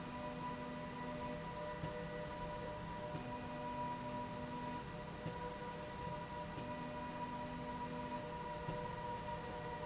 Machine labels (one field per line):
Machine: slide rail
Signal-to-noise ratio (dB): 0 dB